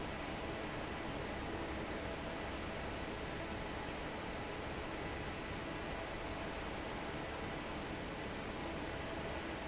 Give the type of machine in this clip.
fan